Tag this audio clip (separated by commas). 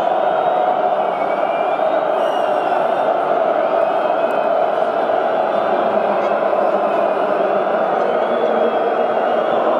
people booing